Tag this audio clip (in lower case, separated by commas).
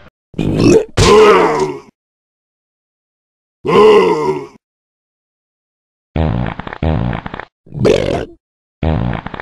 inside a small room, grunt